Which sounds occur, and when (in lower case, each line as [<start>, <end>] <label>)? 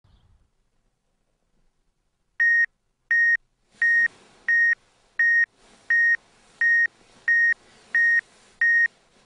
[0.00, 0.14] generic impact sounds
[0.00, 0.19] chirp
[0.00, 3.64] background noise
[2.34, 2.63] alarm clock
[3.06, 3.35] alarm clock
[3.65, 9.25] surface contact
[3.76, 4.01] alarm clock
[4.41, 4.72] alarm clock
[5.13, 5.43] alarm clock
[5.86, 6.13] alarm clock
[6.55, 6.83] alarm clock
[7.23, 7.52] alarm clock
[7.88, 8.17] alarm clock
[8.58, 8.83] alarm clock